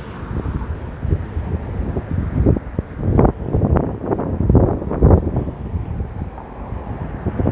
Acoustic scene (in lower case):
street